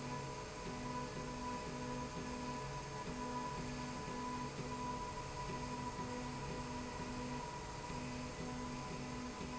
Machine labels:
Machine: slide rail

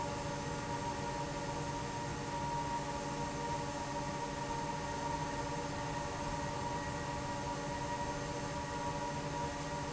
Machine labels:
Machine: fan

